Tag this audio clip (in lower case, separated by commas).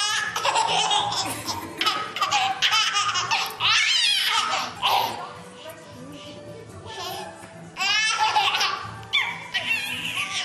baby laughter